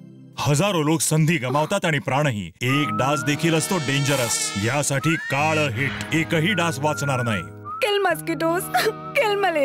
A man is speaking and a fly buzzes